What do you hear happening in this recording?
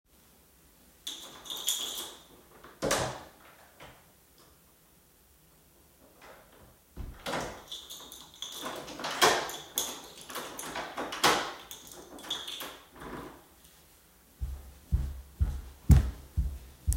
I took my keys, wet through the door, closed and locked it with a key. Afterwards walked away